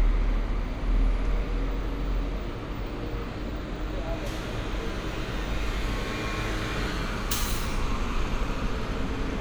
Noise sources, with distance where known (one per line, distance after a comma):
large-sounding engine
person or small group talking